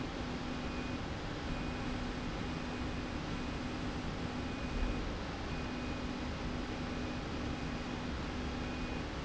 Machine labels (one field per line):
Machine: slide rail